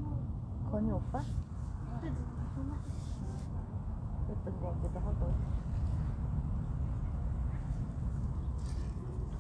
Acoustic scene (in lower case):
park